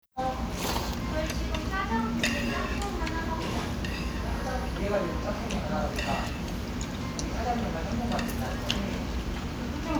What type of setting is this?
restaurant